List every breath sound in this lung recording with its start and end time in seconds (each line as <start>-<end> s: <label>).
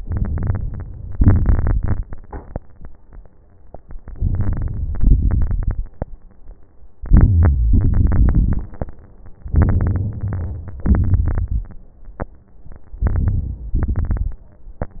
0.00-1.16 s: inhalation
0.00-1.16 s: crackles
1.16-2.56 s: exhalation
1.16-2.56 s: crackles
4.01-4.96 s: inhalation
4.01-4.96 s: crackles
5.00-6.06 s: exhalation
5.00-6.06 s: crackles
7.01-7.75 s: inhalation
7.01-7.75 s: crackles
7.75-8.93 s: exhalation
7.75-8.93 s: crackles
9.50-10.79 s: inhalation
9.50-10.79 s: crackles
10.85-11.70 s: exhalation
10.85-11.70 s: crackles
12.92-13.74 s: inhalation
12.92-13.74 s: crackles
13.78-14.59 s: exhalation
13.78-14.59 s: crackles